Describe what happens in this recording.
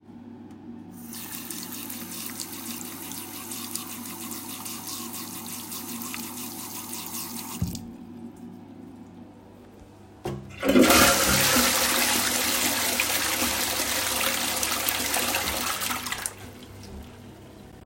I opened the tap, water running, closed the tap and toilet flushing